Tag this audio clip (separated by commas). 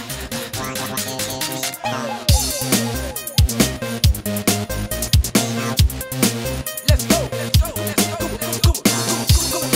Music